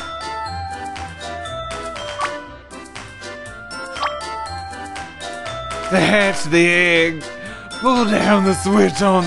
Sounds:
Speech, Music

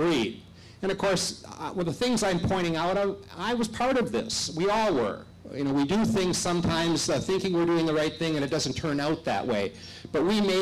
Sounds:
Speech

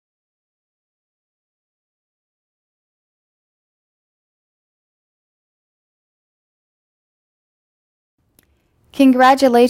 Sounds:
Silence, Speech

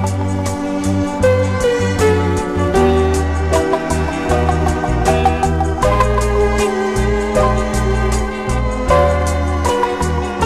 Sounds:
Music

